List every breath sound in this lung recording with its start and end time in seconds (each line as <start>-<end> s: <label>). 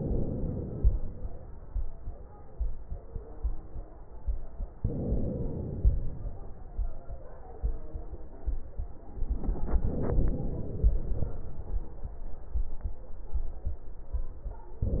0.00-0.80 s: inhalation
0.78-1.57 s: exhalation
4.79-5.77 s: inhalation
5.82-6.50 s: exhalation
9.25-10.92 s: inhalation
10.92-12.01 s: exhalation
14.80-15.00 s: inhalation